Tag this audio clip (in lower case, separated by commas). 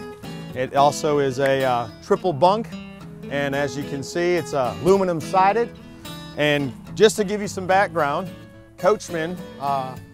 music, speech